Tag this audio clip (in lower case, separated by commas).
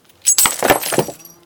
glass, shatter